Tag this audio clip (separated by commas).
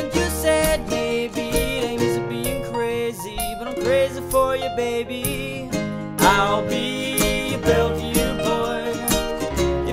Guitar, Music, Singing, Musical instrument, Plucked string instrument